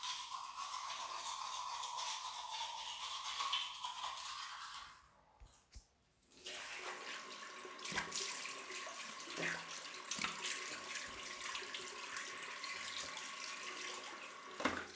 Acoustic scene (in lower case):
restroom